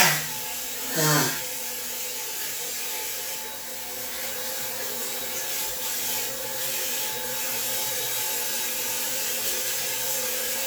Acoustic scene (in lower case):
restroom